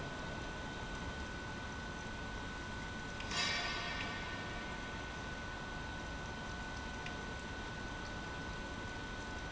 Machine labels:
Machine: pump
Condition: abnormal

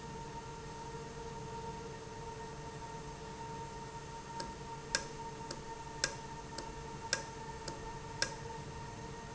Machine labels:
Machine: valve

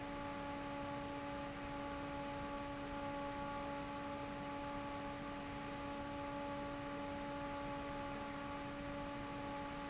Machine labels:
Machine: fan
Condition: normal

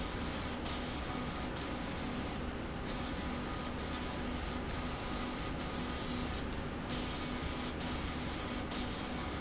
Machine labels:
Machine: slide rail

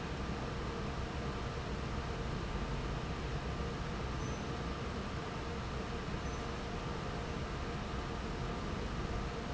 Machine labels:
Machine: fan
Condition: normal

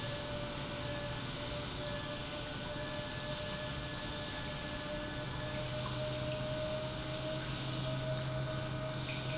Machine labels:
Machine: pump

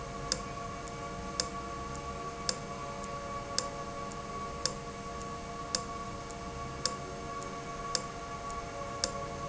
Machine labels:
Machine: valve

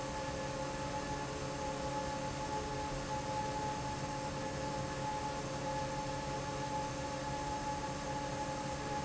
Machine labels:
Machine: fan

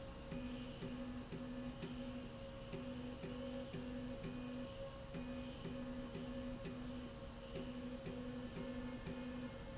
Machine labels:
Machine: slide rail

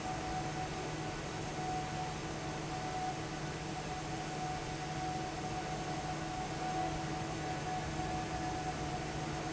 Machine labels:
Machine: fan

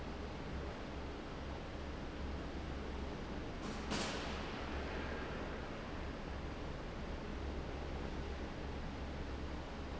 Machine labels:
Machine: fan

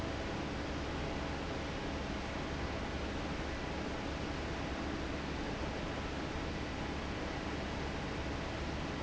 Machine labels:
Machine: fan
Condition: normal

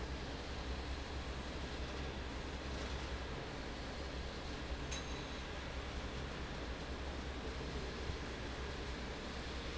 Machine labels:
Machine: fan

